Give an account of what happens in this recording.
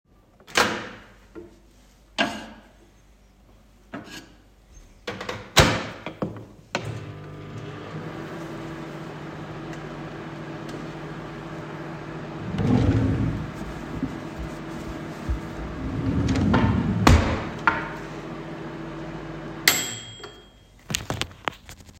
I pulled open the kitchen drawer to look for a utensil and then closed it again. The oven clicked in the background as it was heating up. I found what I needed and got back to cooking.